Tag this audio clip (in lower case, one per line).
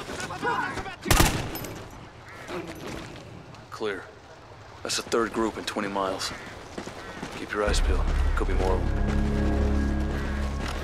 animal
speech